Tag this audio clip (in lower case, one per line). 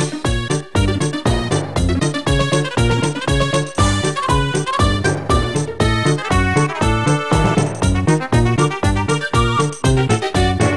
music